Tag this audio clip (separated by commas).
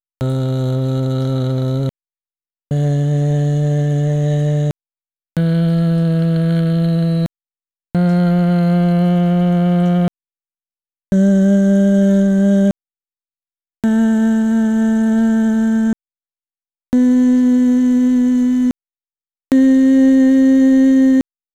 Human voice